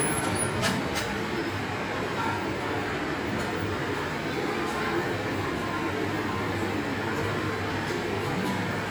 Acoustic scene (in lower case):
subway station